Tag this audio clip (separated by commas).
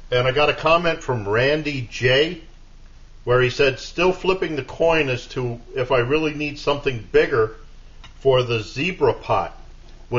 Speech